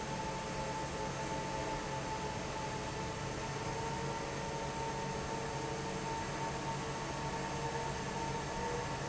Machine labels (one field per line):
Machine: fan